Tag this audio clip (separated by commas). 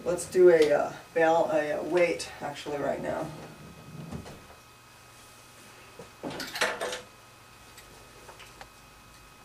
inside a large room or hall, Speech